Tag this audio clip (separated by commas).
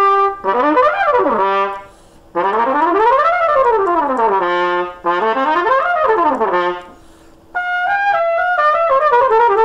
playing cornet